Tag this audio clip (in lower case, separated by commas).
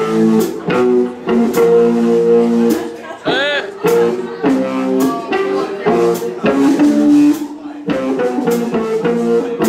music, speech